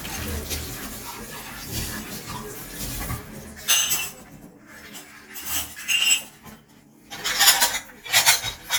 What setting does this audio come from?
kitchen